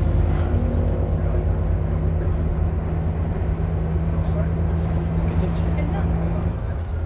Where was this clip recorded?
on a bus